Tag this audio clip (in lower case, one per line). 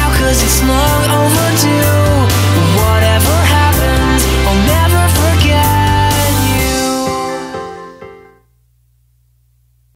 music